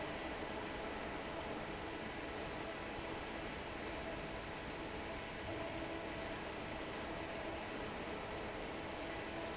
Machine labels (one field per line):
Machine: fan